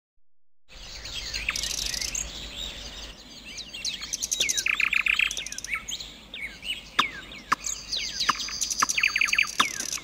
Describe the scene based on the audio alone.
A group of birds are chirping